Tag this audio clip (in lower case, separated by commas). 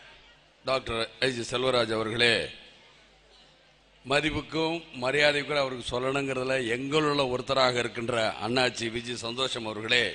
man speaking, speech, monologue